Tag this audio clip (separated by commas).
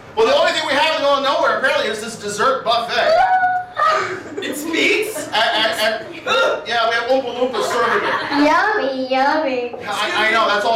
Speech